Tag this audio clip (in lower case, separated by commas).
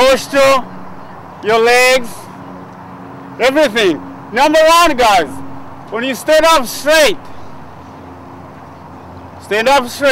speech, outside, urban or man-made